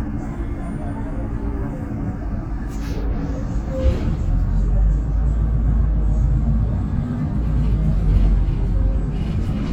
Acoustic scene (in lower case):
bus